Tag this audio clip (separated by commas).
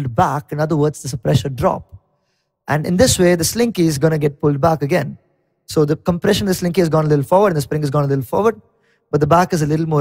Speech